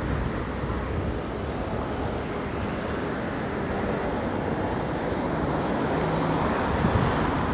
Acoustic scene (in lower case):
residential area